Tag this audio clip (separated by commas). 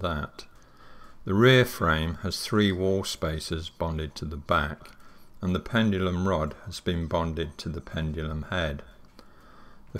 Speech